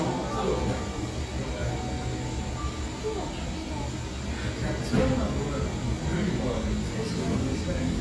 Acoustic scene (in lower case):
cafe